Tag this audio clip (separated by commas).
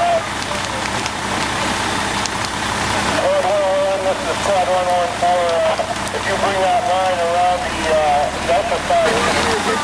Crackle, Speech, fire crackling